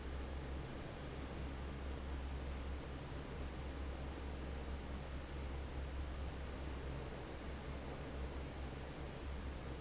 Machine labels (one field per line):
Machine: fan